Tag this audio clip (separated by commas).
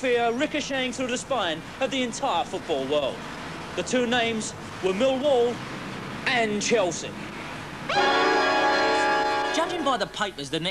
Speech, Music